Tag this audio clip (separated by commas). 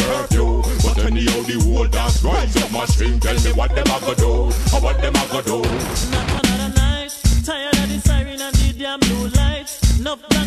Funk, Music